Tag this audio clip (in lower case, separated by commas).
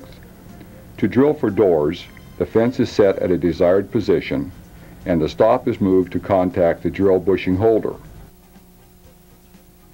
music, speech